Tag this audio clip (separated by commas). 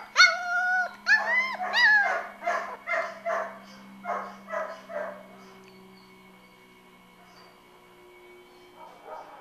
Animal, Domestic animals, Dog, inside a large room or hall